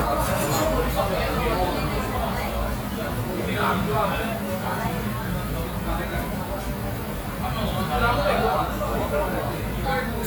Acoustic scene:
crowded indoor space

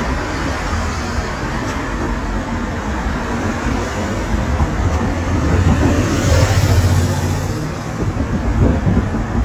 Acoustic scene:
street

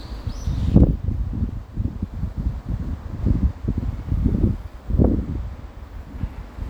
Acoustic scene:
residential area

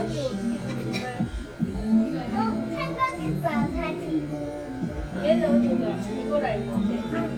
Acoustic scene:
crowded indoor space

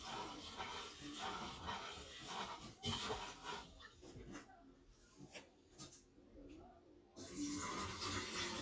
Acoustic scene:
kitchen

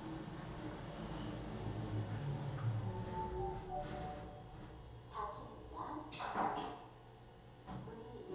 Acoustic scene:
elevator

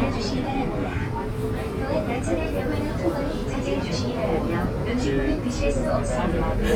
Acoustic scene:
subway train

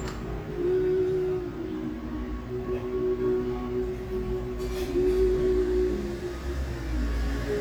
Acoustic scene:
cafe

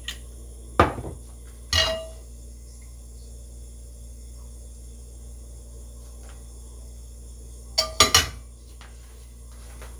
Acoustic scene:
kitchen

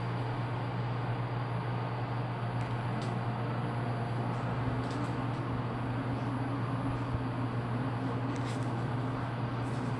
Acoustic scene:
elevator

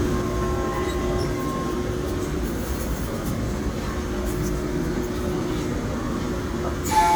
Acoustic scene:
subway train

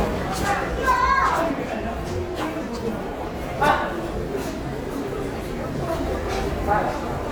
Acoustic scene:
subway station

